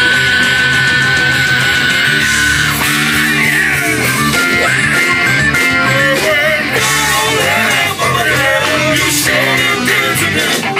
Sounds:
singing, music

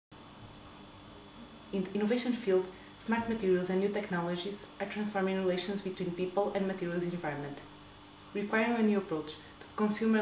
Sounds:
speech

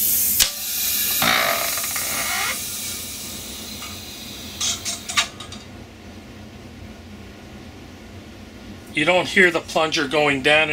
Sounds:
speech

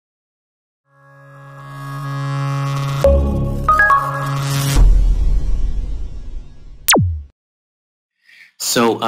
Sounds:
speech, music

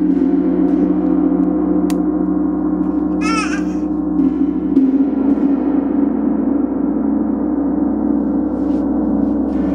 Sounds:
playing gong

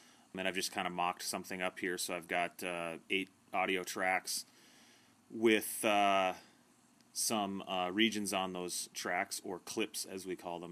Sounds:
speech

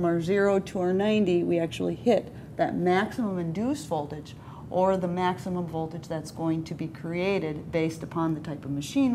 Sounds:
inside a small room, speech

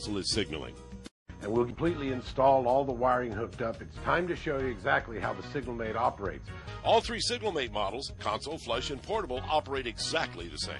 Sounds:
music, speech

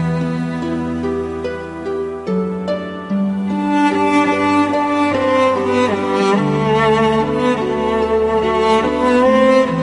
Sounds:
music

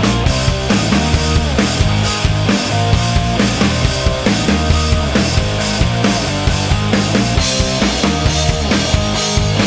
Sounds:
music

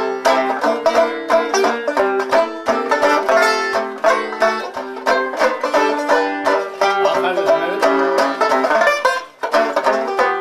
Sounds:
music, banjo, playing banjo, mandolin, country, bluegrass

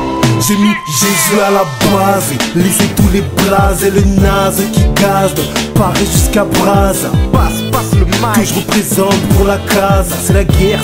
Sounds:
music

